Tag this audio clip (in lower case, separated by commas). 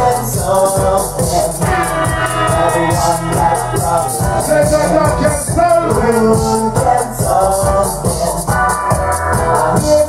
speech, music